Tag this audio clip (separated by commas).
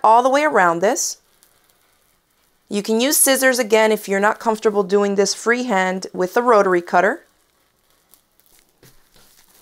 inside a small room, Speech